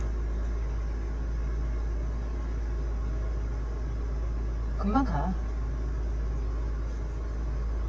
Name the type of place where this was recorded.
car